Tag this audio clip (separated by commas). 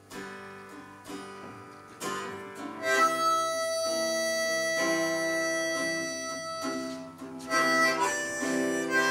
Harmonica, Musical instrument, Guitar, Music